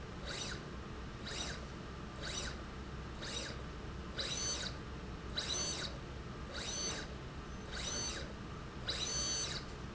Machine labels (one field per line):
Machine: slide rail